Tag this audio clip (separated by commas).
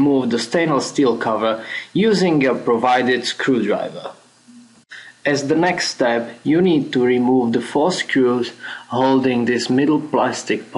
Speech